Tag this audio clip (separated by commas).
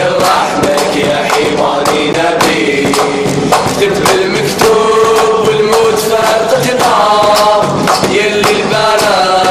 Music